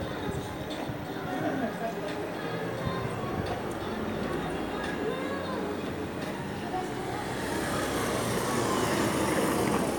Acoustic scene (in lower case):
street